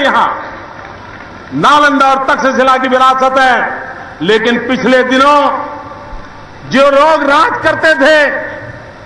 A man makes a speech which is broadcast through loudspeakers